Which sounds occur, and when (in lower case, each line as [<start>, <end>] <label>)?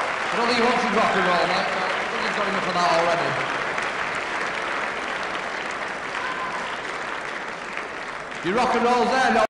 [0.00, 9.43] applause
[0.00, 9.43] crowd
[0.24, 1.65] male speech
[2.06, 3.38] male speech
[6.07, 6.71] human sounds
[8.37, 9.43] male speech